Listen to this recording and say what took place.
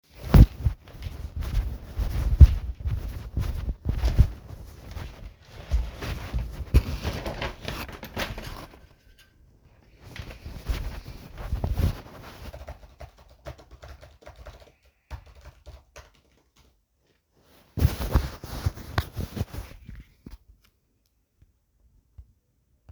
I walked to a desk area and opened the window. After sitting down I typed on the keyboard for several seconds. Footsteps are audible during the movement.